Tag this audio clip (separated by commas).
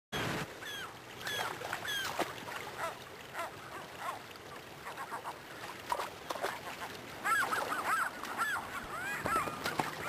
Goose